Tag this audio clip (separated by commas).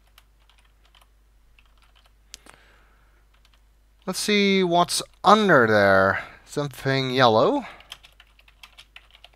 Speech